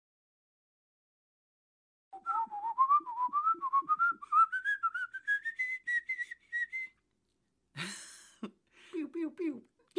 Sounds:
silence

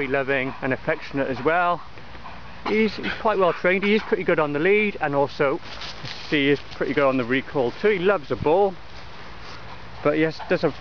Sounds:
speech

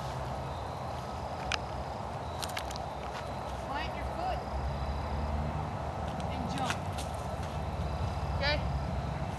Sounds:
speech, outside, rural or natural

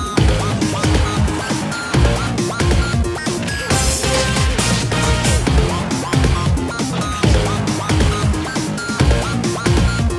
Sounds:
music

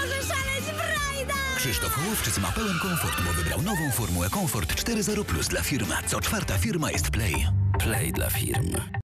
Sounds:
music, speech

